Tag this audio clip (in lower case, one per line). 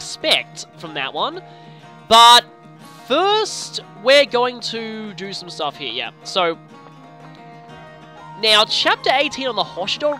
music
speech